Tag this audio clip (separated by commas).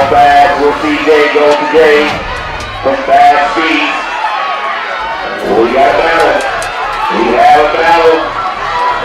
Speech, outside, urban or man-made